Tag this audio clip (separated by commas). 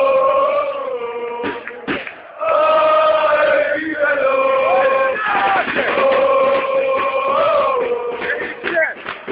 Choir, Speech, Male singing